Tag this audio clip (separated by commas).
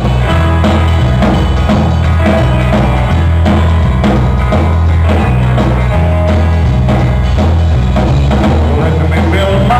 Music, Guitar, Plucked string instrument, Musical instrument